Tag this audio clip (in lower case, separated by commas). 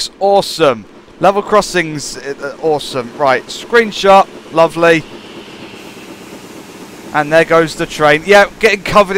vehicle, train, speech